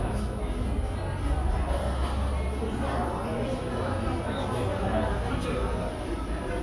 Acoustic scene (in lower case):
cafe